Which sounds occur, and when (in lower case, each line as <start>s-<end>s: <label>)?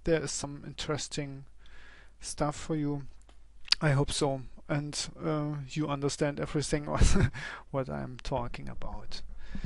0.0s-9.6s: background noise
0.0s-1.5s: man speaking
1.5s-2.1s: breathing
1.6s-1.7s: tick
2.2s-3.0s: man speaking
3.2s-3.3s: tick
3.6s-3.8s: tick
3.8s-4.6s: man speaking
4.7s-7.0s: man speaking
6.9s-7.3s: giggle
6.9s-7.3s: wind noise (microphone)
7.3s-7.7s: breathing
7.8s-9.2s: man speaking
8.2s-8.3s: tick
8.5s-8.6s: tick
9.5s-9.6s: generic impact sounds